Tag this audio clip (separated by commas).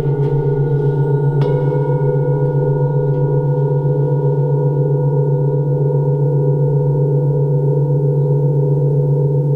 Singing bowl